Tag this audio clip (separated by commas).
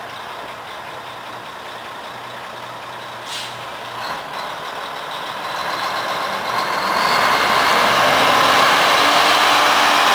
Vehicle, Truck